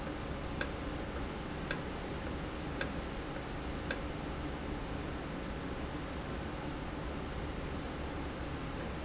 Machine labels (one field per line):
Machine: valve